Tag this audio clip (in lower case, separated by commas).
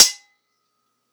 domestic sounds, cutlery